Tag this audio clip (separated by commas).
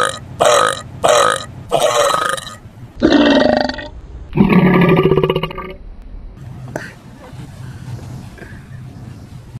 people burping, eructation